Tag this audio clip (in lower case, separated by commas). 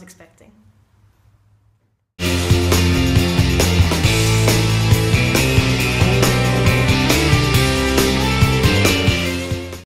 speech, music